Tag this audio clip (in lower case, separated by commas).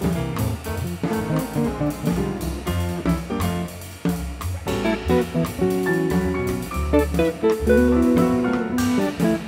guitar, musical instrument, music, strum, plucked string instrument